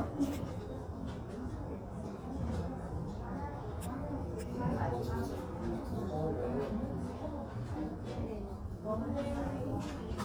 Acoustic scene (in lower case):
crowded indoor space